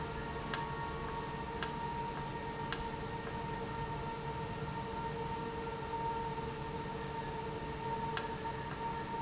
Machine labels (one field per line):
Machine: valve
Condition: normal